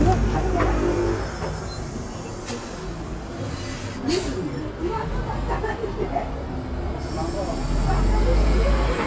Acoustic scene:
street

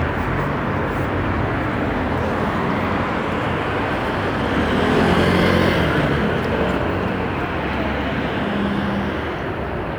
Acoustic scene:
street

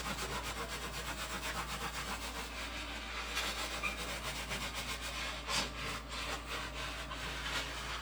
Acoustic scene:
kitchen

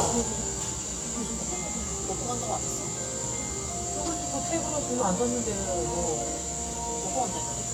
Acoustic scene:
cafe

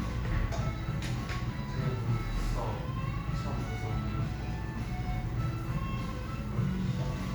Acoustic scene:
cafe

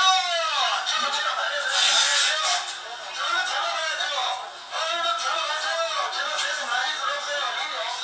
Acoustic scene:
crowded indoor space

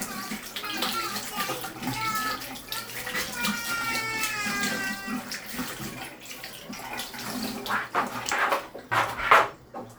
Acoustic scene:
restroom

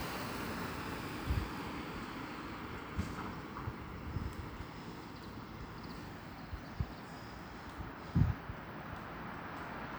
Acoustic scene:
street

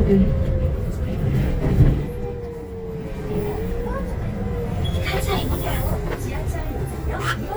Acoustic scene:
bus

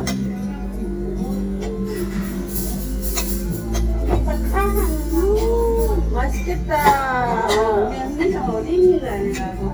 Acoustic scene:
restaurant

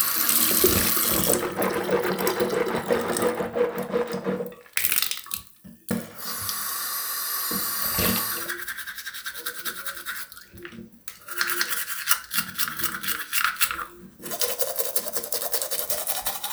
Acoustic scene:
restroom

